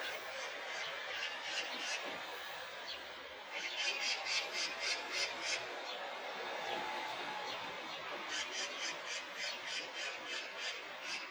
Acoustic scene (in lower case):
park